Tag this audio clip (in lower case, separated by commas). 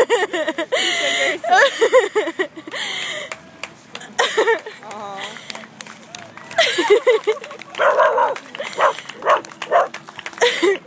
outside, urban or man-made, speech